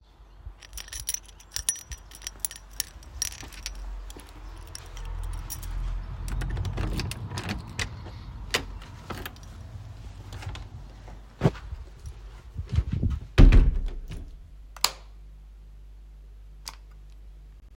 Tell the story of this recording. I got my keys, opened the door with them and turned on the light. I noticed it was bright enough and turned the light off again.